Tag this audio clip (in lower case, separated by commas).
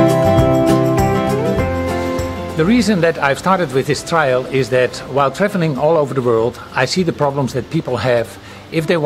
music, speech